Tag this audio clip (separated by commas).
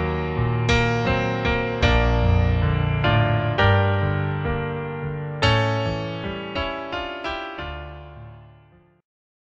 Music, Theme music